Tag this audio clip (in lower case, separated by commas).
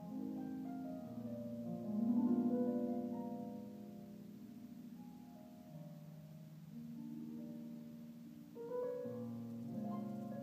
musical instrument, music, harp